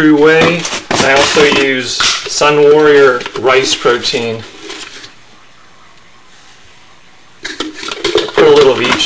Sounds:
speech

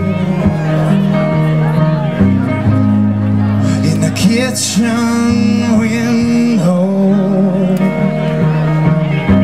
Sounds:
speech
music

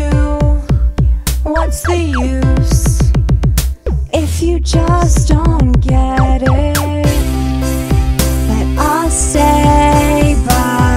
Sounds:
tender music
music

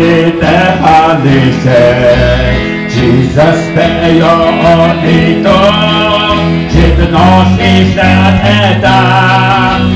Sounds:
gospel music
music

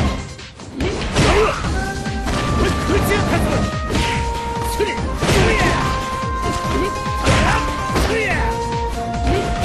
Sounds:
music
speech

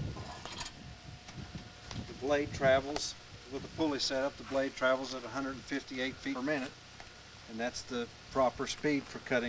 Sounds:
speech

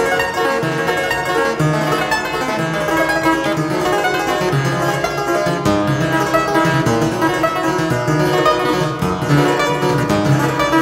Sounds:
playing harpsichord

